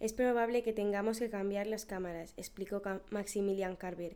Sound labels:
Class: speech